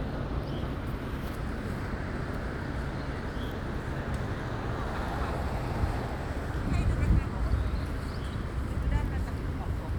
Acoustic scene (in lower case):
residential area